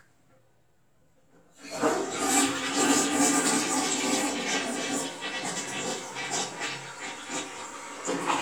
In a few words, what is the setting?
restroom